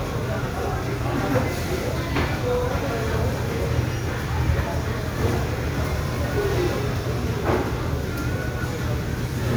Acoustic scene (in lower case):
restaurant